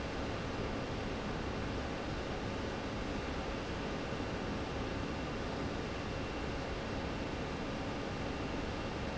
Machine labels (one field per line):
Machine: fan